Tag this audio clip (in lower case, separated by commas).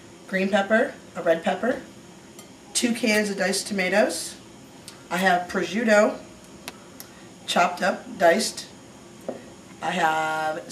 speech